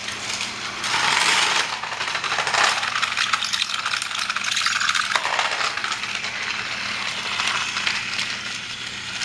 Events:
[0.00, 9.24] mechanisms

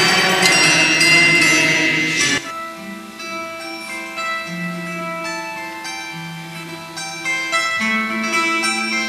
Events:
[0.00, 9.05] music

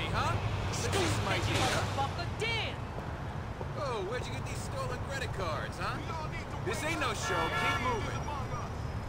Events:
[0.00, 0.36] man speaking
[0.00, 9.05] conversation
[0.00, 9.05] roadway noise
[0.00, 9.05] video game sound
[0.71, 1.13] scrape
[0.78, 1.81] man speaking
[1.44, 1.81] scrape
[1.93, 2.71] man speaking
[2.93, 3.01] footsteps
[3.54, 3.63] footsteps
[3.72, 8.65] man speaking
[4.15, 4.26] footsteps
[4.84, 4.94] footsteps
[5.29, 5.39] footsteps
[6.02, 6.11] footsteps
[7.22, 8.02] honking
[7.55, 9.05] tire squeal

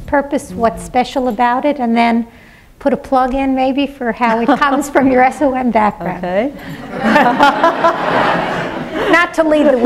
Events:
[0.00, 9.85] background noise
[0.07, 2.27] woman speaking
[0.07, 9.85] conversation
[2.21, 2.77] breathing
[2.79, 6.48] woman speaking
[4.13, 5.53] laughter
[6.56, 6.90] breathing
[6.83, 9.85] laughter
[9.05, 9.85] woman speaking

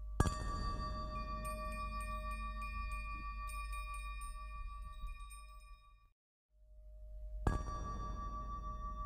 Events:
[0.01, 6.09] music
[6.47, 9.05] music

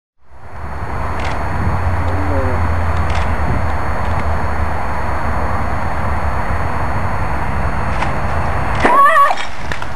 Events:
[0.12, 9.95] wind
[0.16, 9.95] mechanisms
[1.13, 1.32] generic impact sounds
[2.00, 2.06] tick
[2.87, 2.95] tick
[3.00, 3.21] generic impact sounds
[3.64, 3.70] tick
[3.94, 4.19] generic impact sounds
[7.87, 8.08] generic impact sounds
[8.69, 8.86] generic impact sounds
[8.84, 9.50] wail
[9.21, 9.47] generic impact sounds
[9.59, 9.95] generic impact sounds

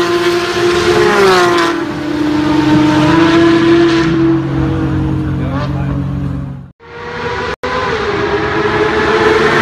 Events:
[0.01, 6.66] car
[6.78, 7.52] car
[7.59, 9.61] car

